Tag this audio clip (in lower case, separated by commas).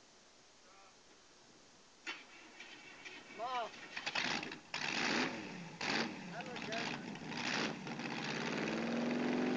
engine starting, vehicle, vroom, speech